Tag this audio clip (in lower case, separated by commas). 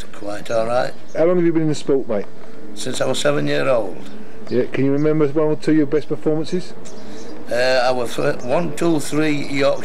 speech